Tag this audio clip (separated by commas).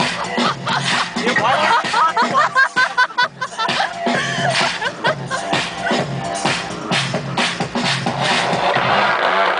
Music, Speech